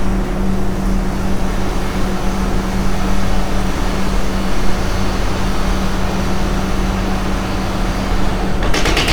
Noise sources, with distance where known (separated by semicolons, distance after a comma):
unidentified impact machinery